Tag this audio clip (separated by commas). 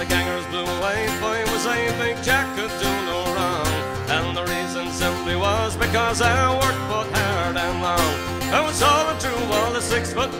Musical instrument, Bluegrass, Music, Folk music, Singing, Song